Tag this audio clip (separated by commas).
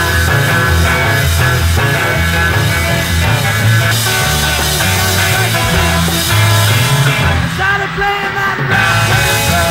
Music